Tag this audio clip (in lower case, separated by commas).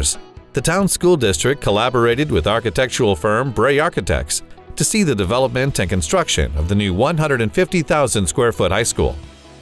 speech, music